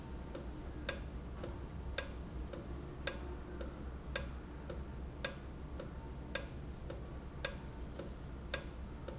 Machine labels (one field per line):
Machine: valve